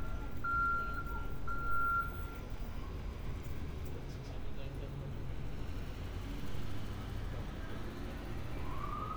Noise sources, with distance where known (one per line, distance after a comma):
reverse beeper, near